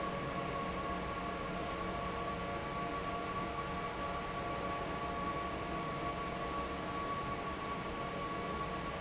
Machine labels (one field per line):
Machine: fan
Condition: normal